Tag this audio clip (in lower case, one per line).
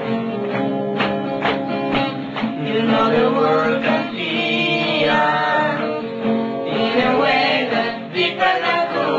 music